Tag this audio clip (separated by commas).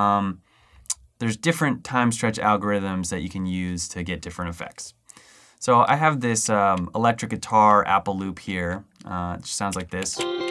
Speech